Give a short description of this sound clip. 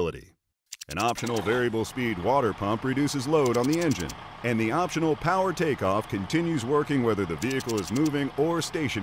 An adult male speaks over a running engine